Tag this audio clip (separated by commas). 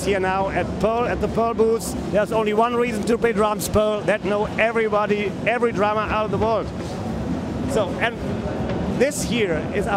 Speech